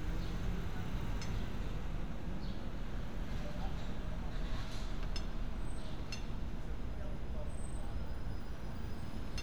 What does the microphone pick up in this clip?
unidentified impact machinery